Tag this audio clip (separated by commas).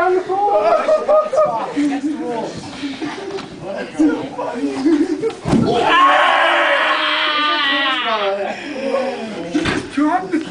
Speech